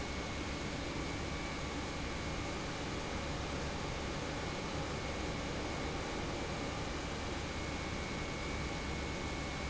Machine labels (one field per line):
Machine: pump